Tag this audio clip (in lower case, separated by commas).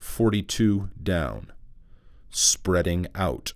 human voice, speech, male speech